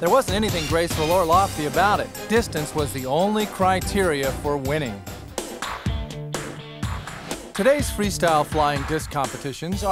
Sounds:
Music, Speech

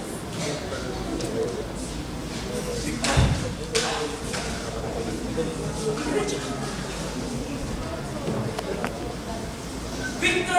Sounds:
Female speech, man speaking, Speech

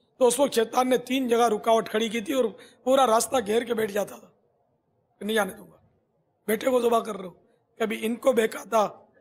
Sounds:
Male speech, Speech, monologue

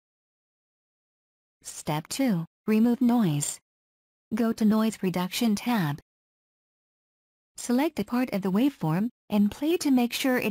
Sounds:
Speech

